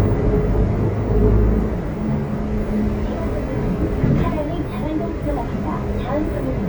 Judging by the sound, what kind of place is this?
bus